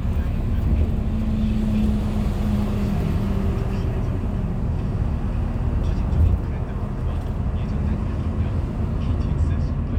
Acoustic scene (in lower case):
bus